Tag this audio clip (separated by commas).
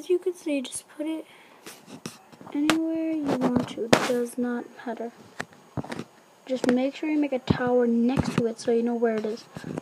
outside, urban or man-made, Speech